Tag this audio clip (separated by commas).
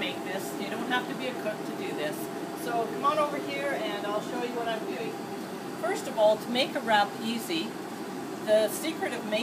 Speech